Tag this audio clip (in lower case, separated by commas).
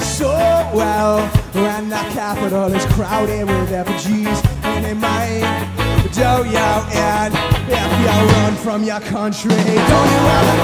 music